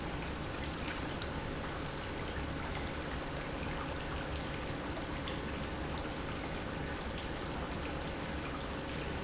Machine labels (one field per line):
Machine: pump